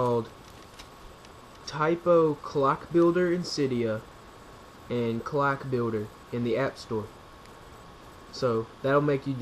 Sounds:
speech

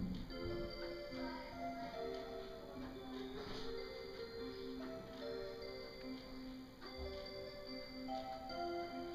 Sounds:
tick

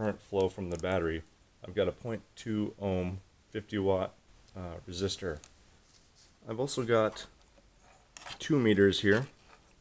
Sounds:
speech

